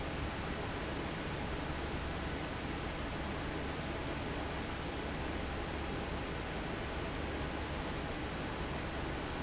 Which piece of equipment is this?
fan